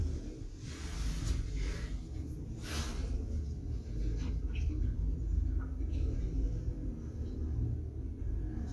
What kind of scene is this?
elevator